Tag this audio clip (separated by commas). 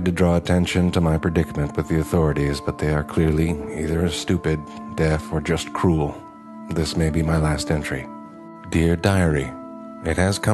Speech, Music